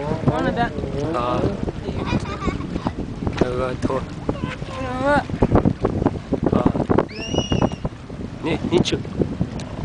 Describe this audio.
Water is gently splashing and people are conversing and a child laughs and screams